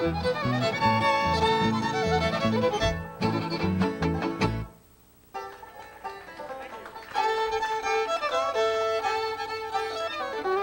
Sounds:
Musical instrument, Pizzicato, fiddle, Music, Speech

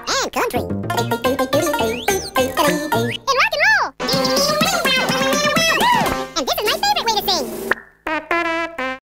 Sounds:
Music

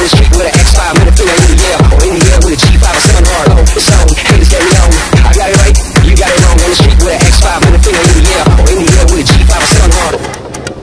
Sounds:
Techno, Electronic music, Music

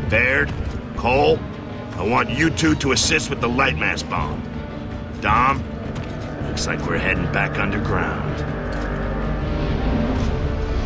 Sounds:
Music, Speech

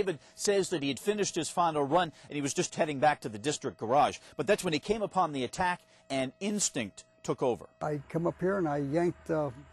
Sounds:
Speech

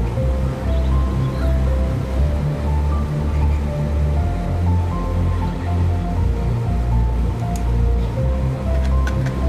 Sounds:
Music

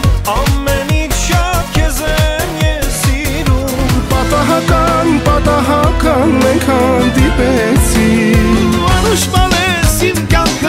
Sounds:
Music, Blues

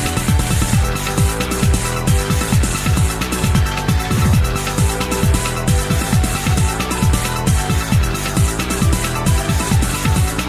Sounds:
Music

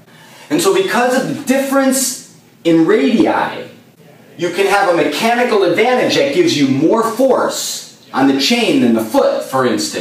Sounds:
Speech

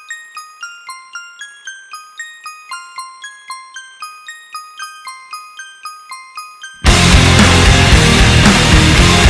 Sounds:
Music

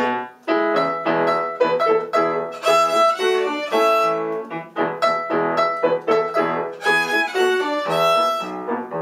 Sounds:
Musical instrument, Violin, Music

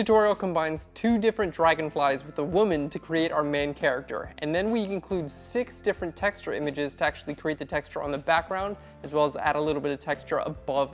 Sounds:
Speech, Music

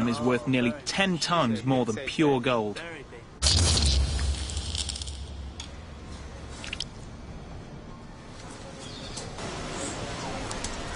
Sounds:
Speech, Animal

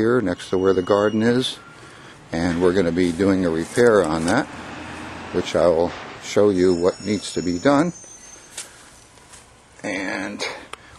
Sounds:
Speech

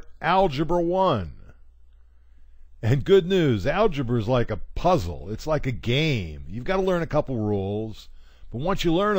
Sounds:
Speech

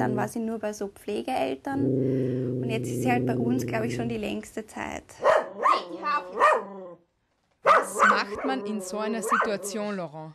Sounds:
dog growling

